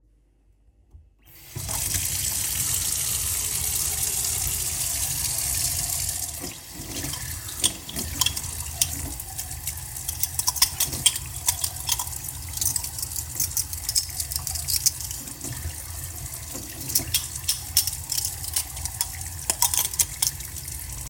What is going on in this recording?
I turned on the water tap in the kitchen sink. While the water was running I handled cutlery and dishes in the sink.